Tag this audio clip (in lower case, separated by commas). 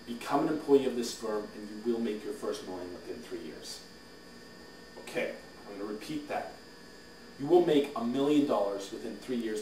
monologue, speech